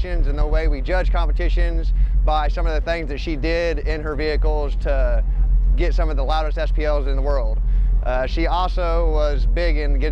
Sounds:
Speech

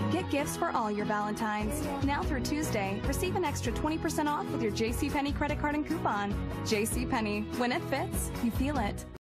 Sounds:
Music, Speech

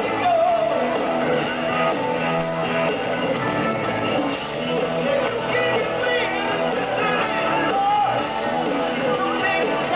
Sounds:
Punk rock, Heavy metal, Exciting music, Roll, Progressive rock, Rock and roll, Music

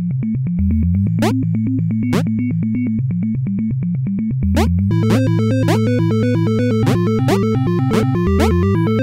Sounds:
Music

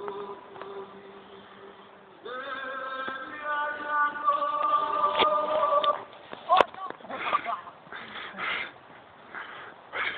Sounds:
Speech, Mantra

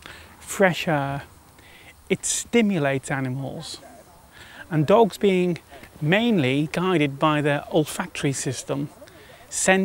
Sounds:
Speech

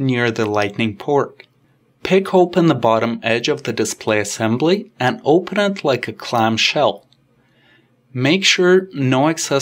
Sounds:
Speech

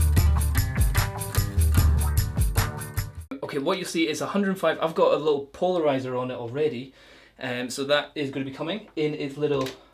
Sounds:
Music, Speech

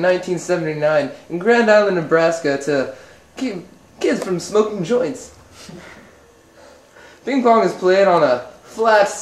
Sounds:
Speech

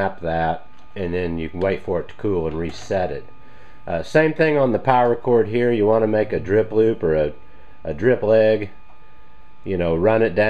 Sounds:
Speech

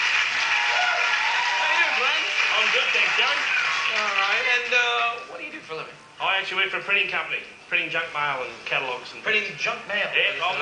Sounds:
Speech

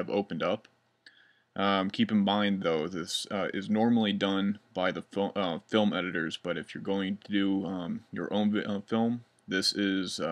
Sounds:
Speech

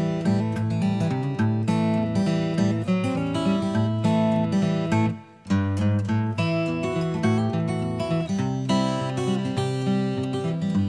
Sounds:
Music

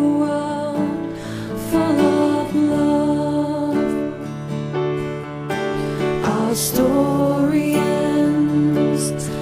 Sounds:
Music

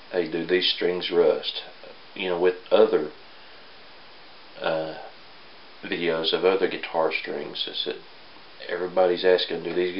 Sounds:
Speech

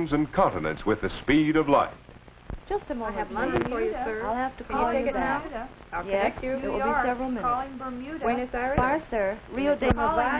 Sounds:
Speech

